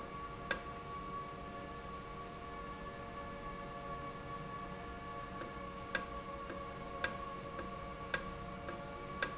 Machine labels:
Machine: valve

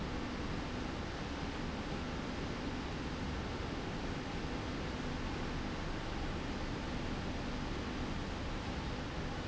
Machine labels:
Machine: slide rail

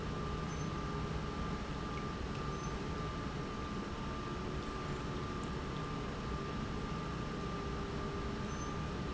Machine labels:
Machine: pump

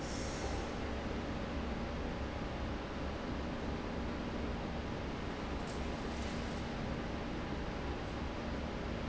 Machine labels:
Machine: fan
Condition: abnormal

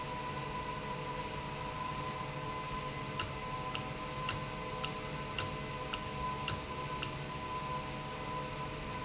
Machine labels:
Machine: valve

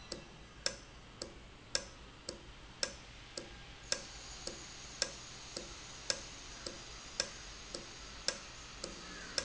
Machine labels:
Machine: valve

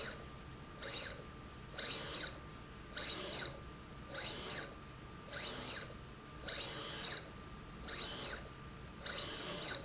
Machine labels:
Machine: slide rail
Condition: abnormal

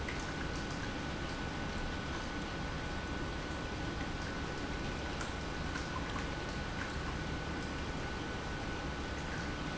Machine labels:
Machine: pump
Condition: normal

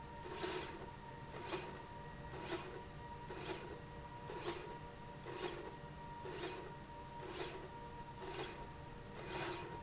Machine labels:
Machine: slide rail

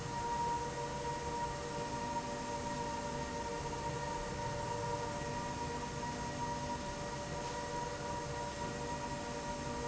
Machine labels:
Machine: slide rail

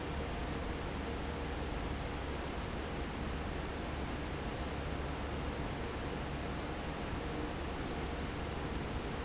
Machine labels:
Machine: fan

